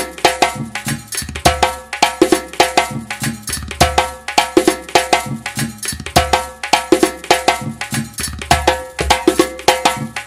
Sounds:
playing djembe

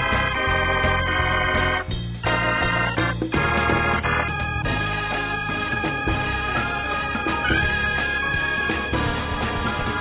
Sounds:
Keyboard (musical), Musical instrument, Synthesizer, Electric piano, Piano, Organ, Music

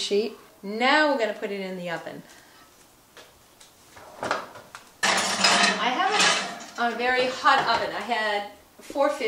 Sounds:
Drawer open or close, inside a small room, opening or closing drawers, Speech

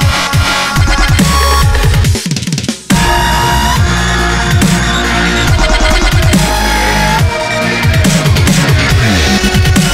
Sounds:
Drum and bass

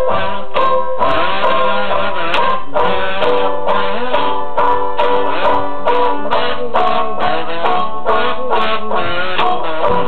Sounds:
Music

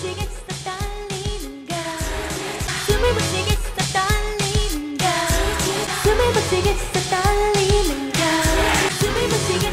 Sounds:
Pop music, Singing, Music, Music of Asia

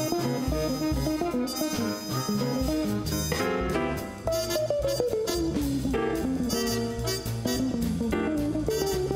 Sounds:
Electric guitar, Strum, Music, Guitar, Musical instrument, Plucked string instrument

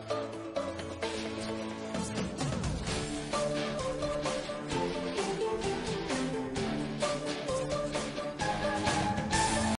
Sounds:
Music

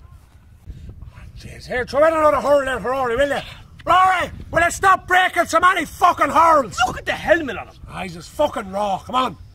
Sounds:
Speech

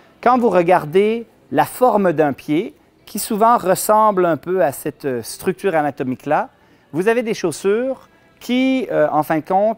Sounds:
inside a small room, Speech

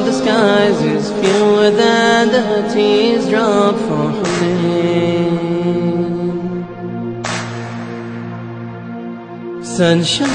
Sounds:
Mantra

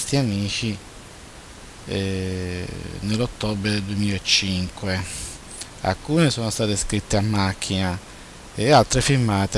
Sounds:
Speech

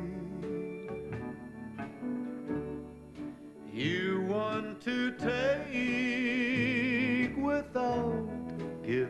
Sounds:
Music, Male singing

